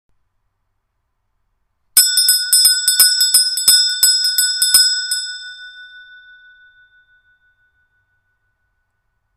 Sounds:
bell

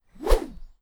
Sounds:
swoosh

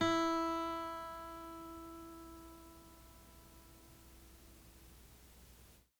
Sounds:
musical instrument
music
guitar
plucked string instrument

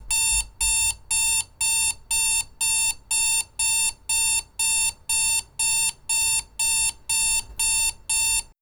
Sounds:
alarm

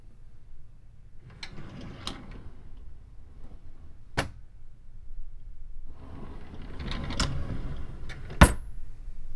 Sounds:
drawer open or close
home sounds

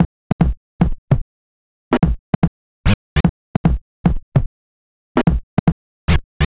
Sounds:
musical instrument
music
scratching (performance technique)

